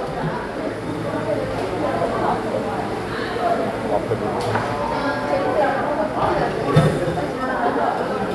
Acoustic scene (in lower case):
cafe